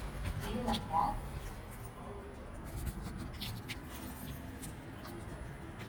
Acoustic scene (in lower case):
elevator